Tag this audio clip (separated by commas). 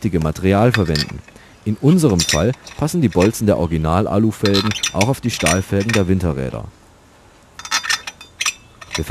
Speech